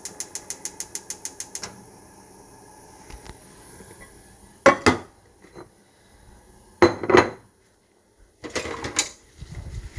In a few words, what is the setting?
kitchen